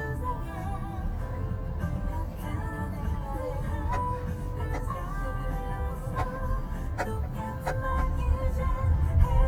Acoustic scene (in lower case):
car